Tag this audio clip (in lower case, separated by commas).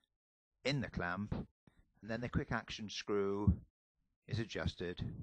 speech